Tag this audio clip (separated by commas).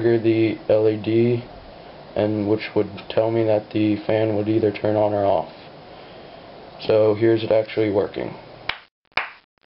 Speech